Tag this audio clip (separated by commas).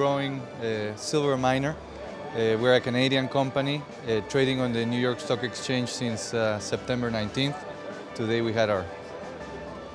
Music, Speech